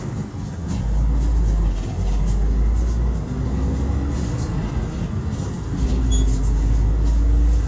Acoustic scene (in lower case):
bus